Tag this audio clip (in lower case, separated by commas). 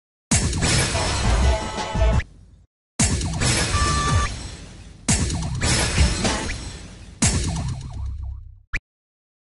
music